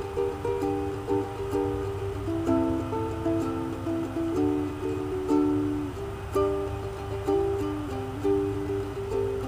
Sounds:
music

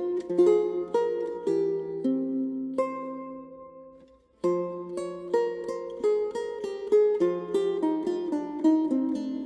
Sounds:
music

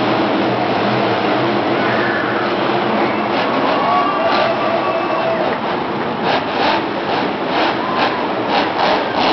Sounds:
vehicle

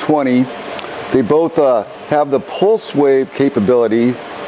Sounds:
speech

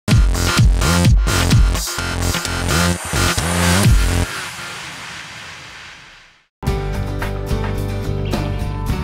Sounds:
electronic dance music

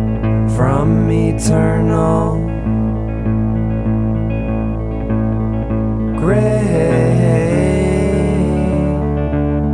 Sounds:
music

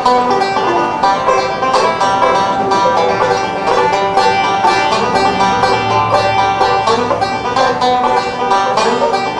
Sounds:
bluegrass
music
banjo

